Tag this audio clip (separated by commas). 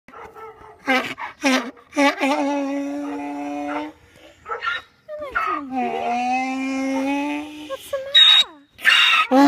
donkey